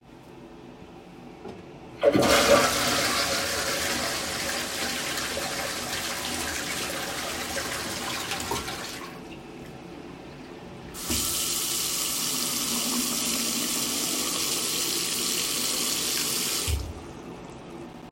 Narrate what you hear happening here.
I flushed the toilet and turned on the sink to wash my hands.